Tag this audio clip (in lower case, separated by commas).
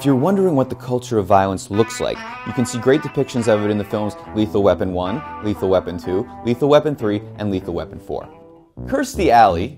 speech, music